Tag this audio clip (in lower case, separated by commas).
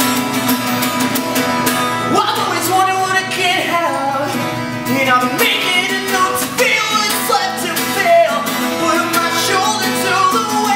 music